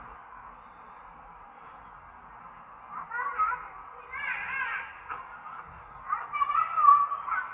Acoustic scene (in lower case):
park